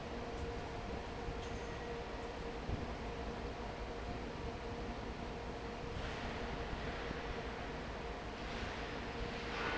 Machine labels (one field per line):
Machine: fan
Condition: normal